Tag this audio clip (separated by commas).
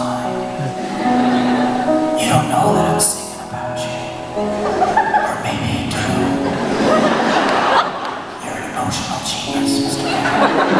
Music